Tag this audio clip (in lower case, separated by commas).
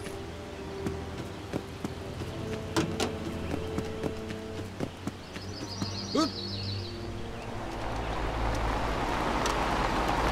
music, outside, rural or natural